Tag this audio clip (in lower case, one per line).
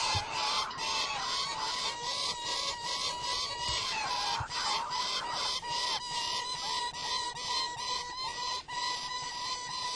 bird
bird song